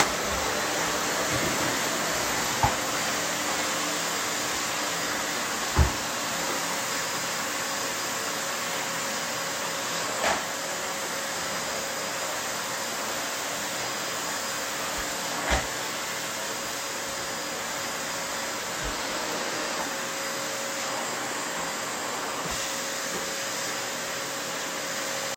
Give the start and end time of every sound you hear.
[0.00, 25.36] vacuum cleaner

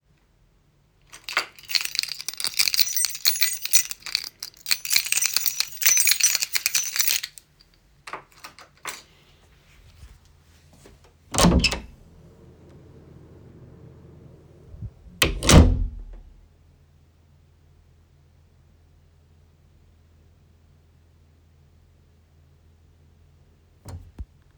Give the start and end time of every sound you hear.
[1.07, 7.49] keys
[11.26, 12.10] door
[15.16, 16.43] door

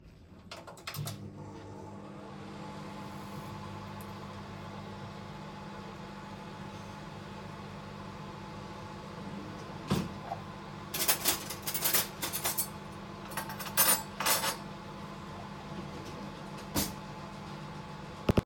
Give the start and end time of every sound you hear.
[0.51, 18.45] microwave
[9.90, 10.05] wardrobe or drawer
[10.88, 12.81] cutlery and dishes
[13.24, 14.62] cutlery and dishes
[16.59, 16.96] wardrobe or drawer

